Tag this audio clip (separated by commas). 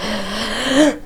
Respiratory sounds, Breathing